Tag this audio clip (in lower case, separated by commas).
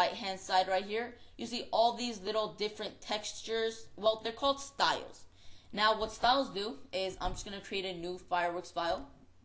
speech